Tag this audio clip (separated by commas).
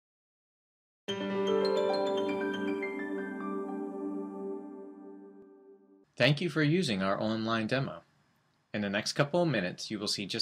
Speech, Music, Vibraphone